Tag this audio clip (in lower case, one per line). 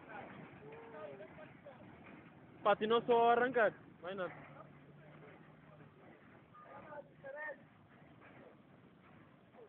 speech